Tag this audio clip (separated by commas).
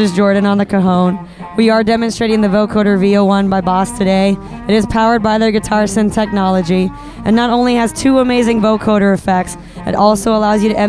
Music, Speech